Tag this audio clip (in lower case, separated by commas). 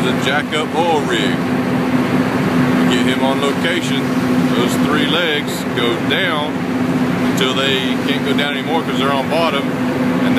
speedboat, vehicle, speech